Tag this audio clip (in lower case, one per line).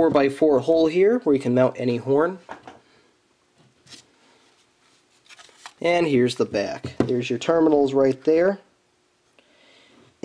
speech